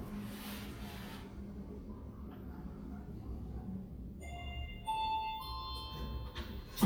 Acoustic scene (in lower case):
elevator